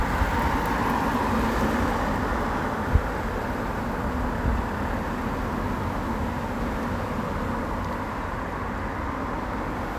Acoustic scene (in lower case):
street